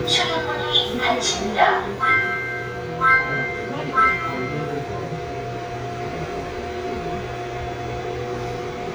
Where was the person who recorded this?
on a subway train